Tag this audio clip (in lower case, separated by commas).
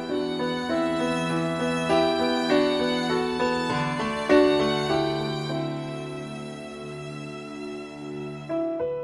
new-age music, music